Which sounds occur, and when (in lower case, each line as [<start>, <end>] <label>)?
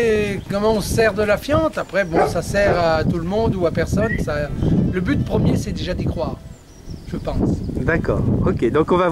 [0.00, 4.54] male speech
[0.00, 9.11] bird call
[0.00, 9.11] conversation
[0.00, 9.11] wind noise (microphone)
[2.09, 3.04] bark
[4.92, 6.39] male speech
[5.06, 6.57] music
[7.02, 7.62] male speech
[7.83, 8.41] music
[7.87, 8.27] male speech
[8.40, 9.11] male speech